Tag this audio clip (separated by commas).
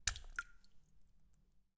Liquid, Raindrop, Rain, Water, Splash